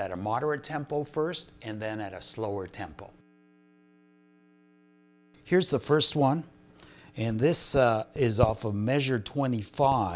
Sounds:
speech

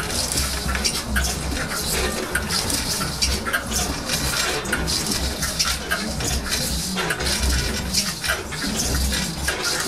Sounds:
wood

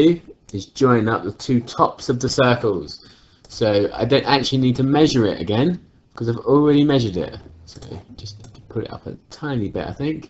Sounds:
speech synthesizer

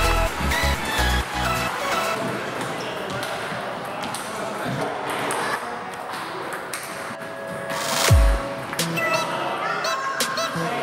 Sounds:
playing table tennis

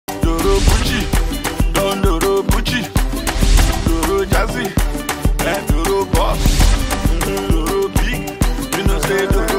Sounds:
music, singing, music of africa, afrobeat

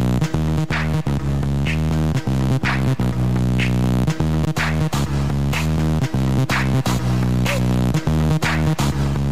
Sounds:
music, independent music

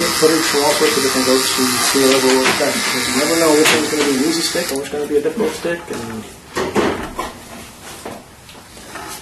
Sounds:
inside a small room, speech, electric razor

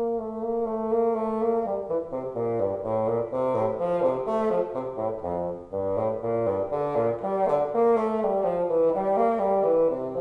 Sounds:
playing bassoon

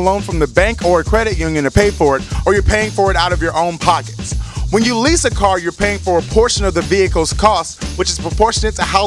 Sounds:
music, speech

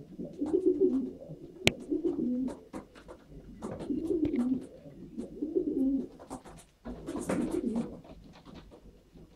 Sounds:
pigeon, inside a small room, bird

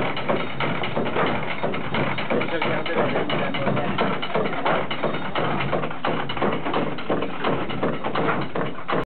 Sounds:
speech

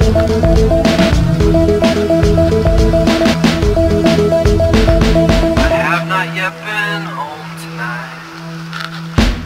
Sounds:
music

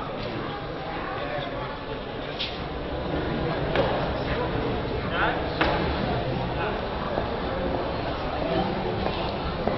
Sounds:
speech

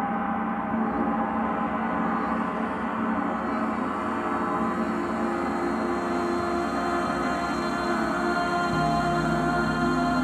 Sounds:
music

